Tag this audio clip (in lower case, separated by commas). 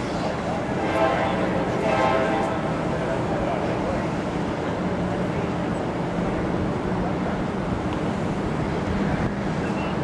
vehicle, speech